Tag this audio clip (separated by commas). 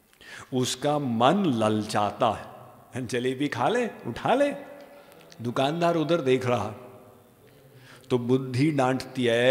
Speech